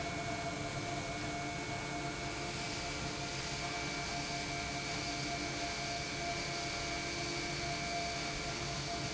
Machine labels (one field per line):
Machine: pump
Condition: normal